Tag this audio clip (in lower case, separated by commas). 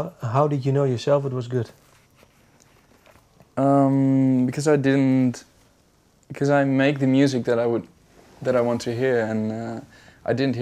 speech, inside a small room